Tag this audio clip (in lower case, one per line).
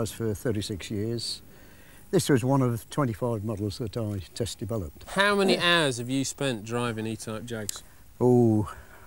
speech